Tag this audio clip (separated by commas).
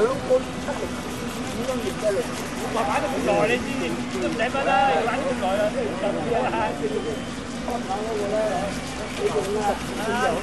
Speech